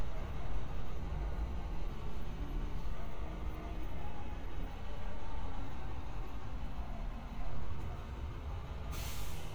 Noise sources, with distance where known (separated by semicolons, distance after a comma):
engine of unclear size, far